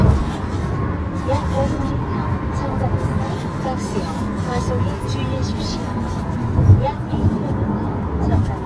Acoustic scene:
car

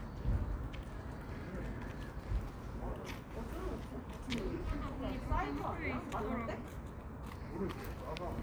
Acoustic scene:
park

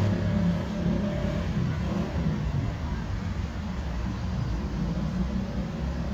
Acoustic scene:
residential area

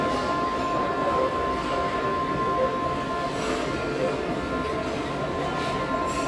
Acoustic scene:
restaurant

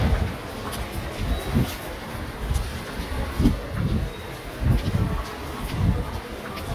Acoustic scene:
subway station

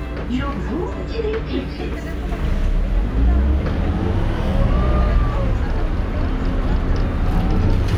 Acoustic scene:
bus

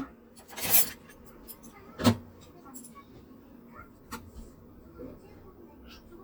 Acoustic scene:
kitchen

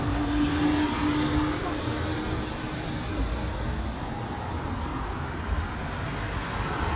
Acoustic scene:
street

